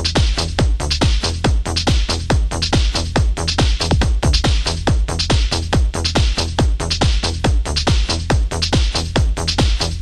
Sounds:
disco, music

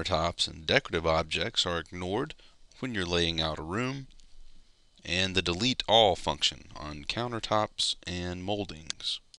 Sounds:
speech

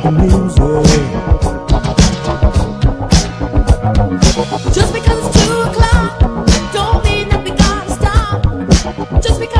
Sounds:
music, funk

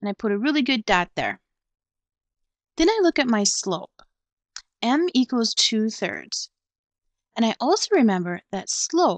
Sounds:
speech, narration

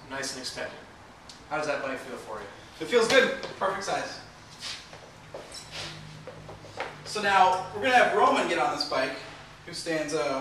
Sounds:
speech

